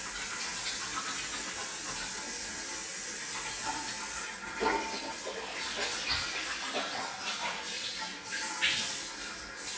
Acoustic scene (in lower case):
restroom